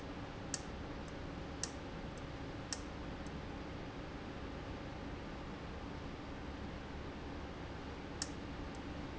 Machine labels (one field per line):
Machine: valve